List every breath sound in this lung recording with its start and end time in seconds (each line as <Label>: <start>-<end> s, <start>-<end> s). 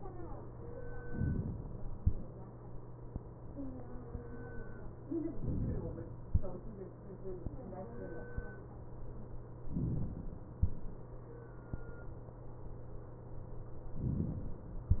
Inhalation: 5.38-6.28 s, 9.68-10.58 s, 14.02-14.92 s